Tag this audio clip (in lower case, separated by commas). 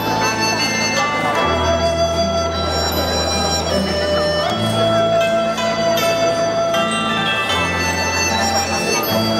church bell, bell